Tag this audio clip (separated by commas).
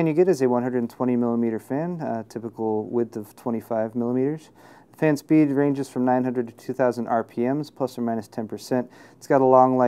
Speech